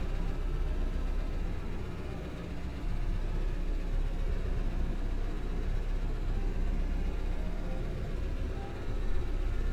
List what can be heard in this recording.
large-sounding engine